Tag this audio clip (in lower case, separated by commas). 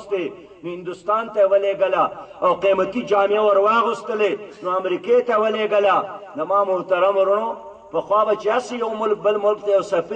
narration, speech, man speaking